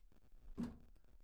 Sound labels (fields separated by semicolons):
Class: cupboard; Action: closing; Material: fibreboard